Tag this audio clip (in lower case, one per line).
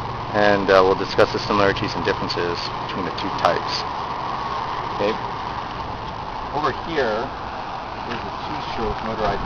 vehicle
speech